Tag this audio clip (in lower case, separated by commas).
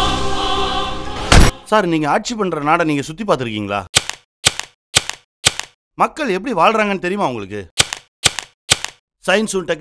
speech, music